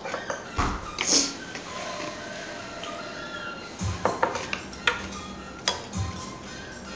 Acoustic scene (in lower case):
restaurant